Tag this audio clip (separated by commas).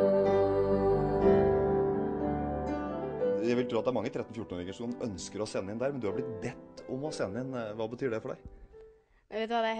Music, Female singing, Speech